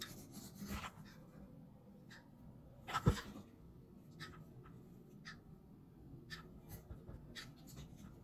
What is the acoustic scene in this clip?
restroom